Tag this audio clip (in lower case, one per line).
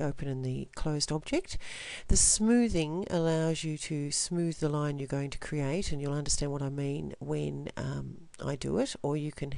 speech